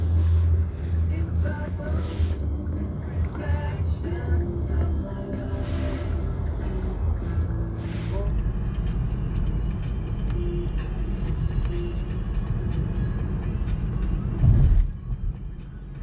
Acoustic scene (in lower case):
car